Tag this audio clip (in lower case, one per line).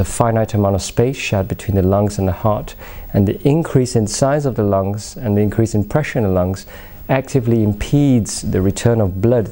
speech